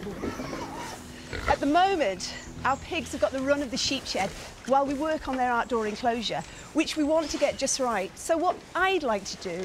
Rustling and oinking are ongoing, and an adult female speaks